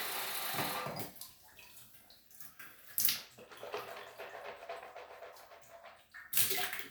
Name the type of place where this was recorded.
restroom